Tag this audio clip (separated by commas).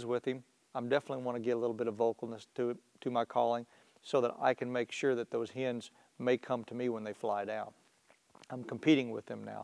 Speech